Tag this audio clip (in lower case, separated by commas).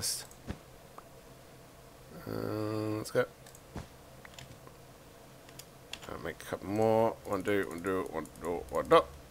typing